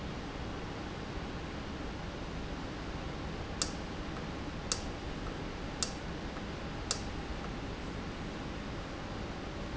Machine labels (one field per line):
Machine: valve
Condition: normal